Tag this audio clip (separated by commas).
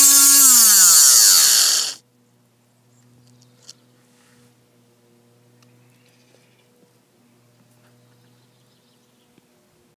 Tools